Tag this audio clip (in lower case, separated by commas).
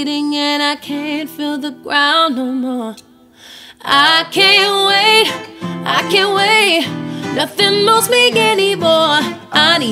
singing, music